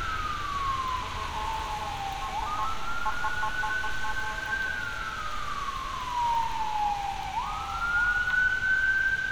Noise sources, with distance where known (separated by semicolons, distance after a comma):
siren, near